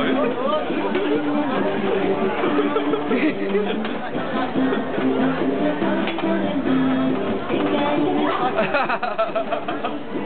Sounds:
Music, Speech

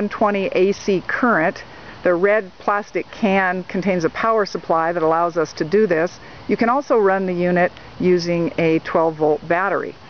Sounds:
Speech

